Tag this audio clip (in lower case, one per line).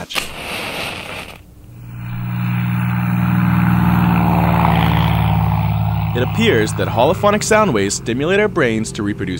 speech